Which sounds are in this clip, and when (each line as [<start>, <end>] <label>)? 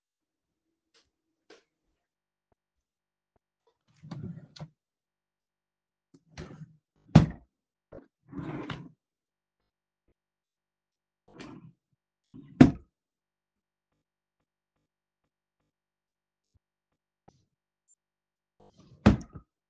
[3.56, 4.82] wardrobe or drawer
[6.13, 9.12] wardrobe or drawer
[11.22, 12.94] wardrobe or drawer
[18.53, 19.56] wardrobe or drawer